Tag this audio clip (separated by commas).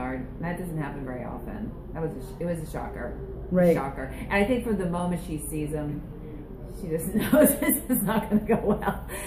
Speech